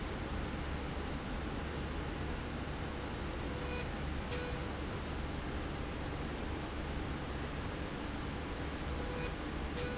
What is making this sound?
slide rail